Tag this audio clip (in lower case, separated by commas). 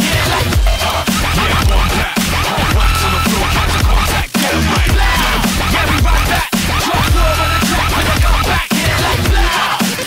electronic music, music, dubstep